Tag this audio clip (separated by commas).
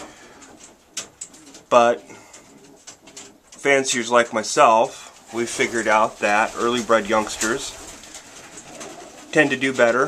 Speech, dove, Bird, inside a small room